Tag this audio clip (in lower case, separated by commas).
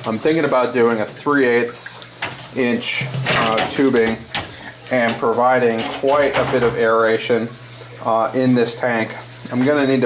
speech, inside a small room